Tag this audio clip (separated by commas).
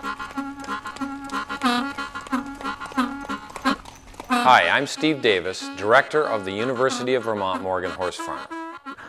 Music, Country, Clip-clop, Speech